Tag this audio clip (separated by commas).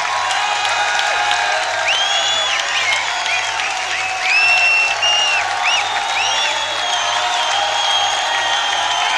Speech